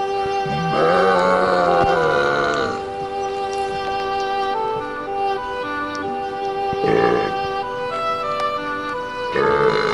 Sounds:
people burping

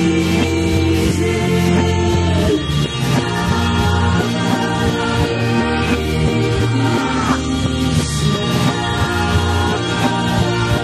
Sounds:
music

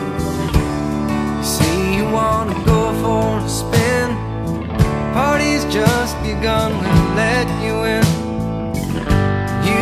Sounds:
music

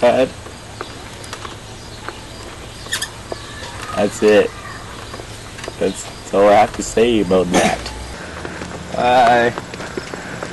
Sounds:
speech
outside, urban or man-made

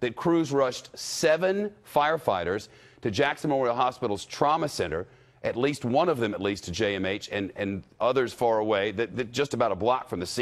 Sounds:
speech

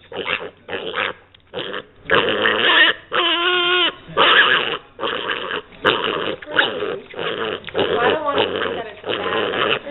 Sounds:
pig oinking

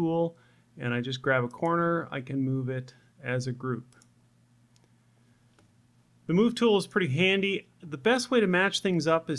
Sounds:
speech

